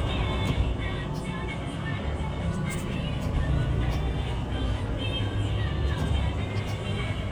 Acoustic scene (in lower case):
bus